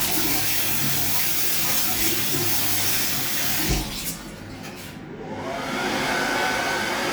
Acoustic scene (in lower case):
restroom